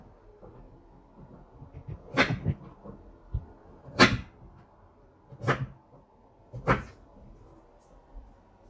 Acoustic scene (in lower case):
kitchen